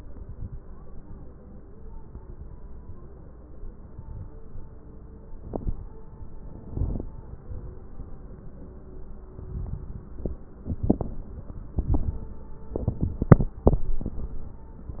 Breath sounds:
0.00-0.57 s: inhalation
0.00-0.57 s: crackles
9.39-10.14 s: inhalation
9.39-10.14 s: crackles

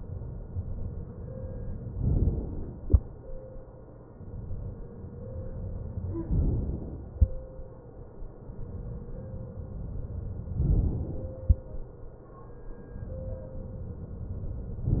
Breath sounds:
2.03-2.85 s: inhalation
6.31-7.14 s: inhalation
10.59-11.42 s: inhalation

